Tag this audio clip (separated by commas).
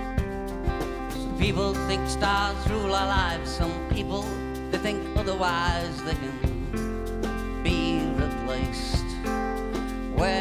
Music, Middle Eastern music